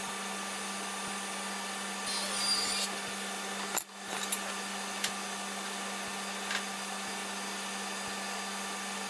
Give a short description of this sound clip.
A machine motor humming then buzzing briefly followed by metal and wood clacking